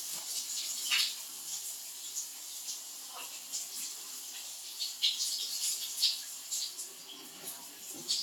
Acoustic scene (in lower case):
restroom